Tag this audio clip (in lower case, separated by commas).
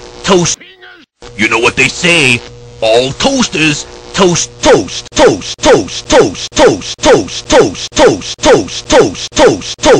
speech